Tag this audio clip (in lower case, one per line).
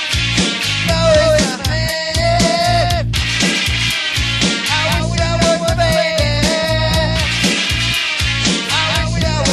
music